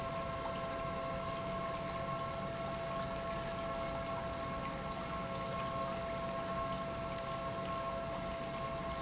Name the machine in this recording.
pump